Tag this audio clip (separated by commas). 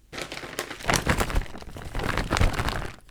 Crumpling